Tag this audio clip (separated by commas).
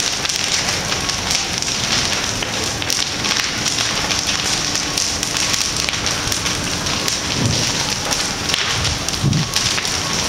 Fire, Wind, Wind noise (microphone)